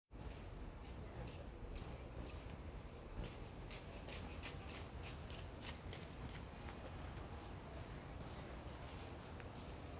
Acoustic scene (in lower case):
residential area